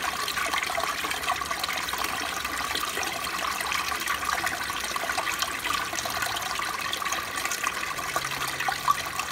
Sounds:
toilet flushing

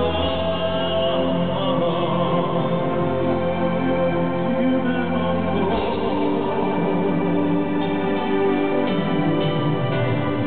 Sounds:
music

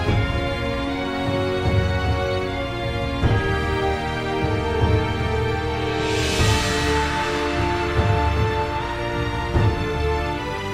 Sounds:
music
soundtrack music
independent music

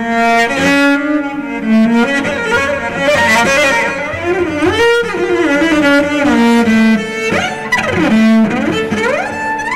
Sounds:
music
cello
musical instrument
playing cello
bowed string instrument
classical music

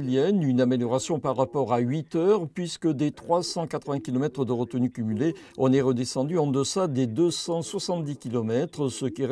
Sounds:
radio
speech

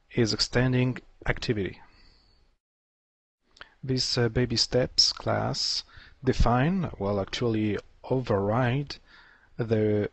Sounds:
speech

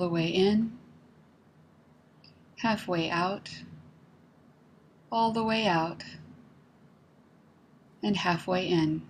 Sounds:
speech

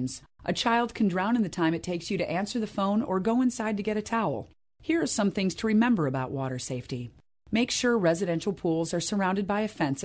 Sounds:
speech

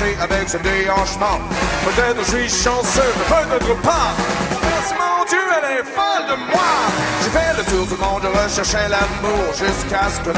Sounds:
music

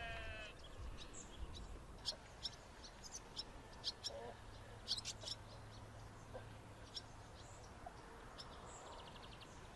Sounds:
barn swallow calling

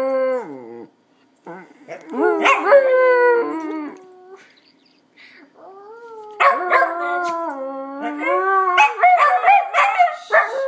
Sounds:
dog howling

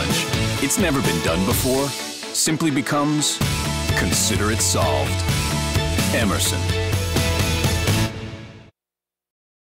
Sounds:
speech
music

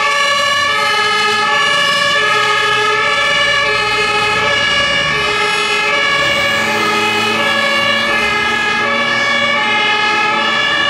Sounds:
fire truck siren

